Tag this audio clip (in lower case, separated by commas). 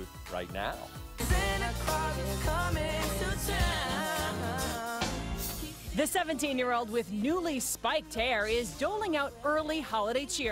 music, speech